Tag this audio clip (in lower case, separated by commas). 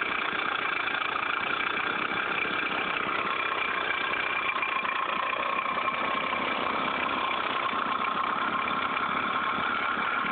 vehicle